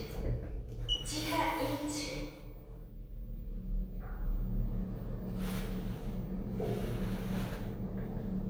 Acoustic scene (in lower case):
elevator